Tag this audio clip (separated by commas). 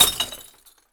Glass